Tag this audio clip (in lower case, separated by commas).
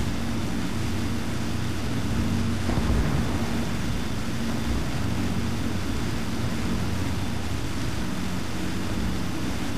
white noise